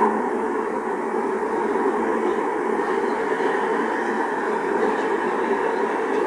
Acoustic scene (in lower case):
street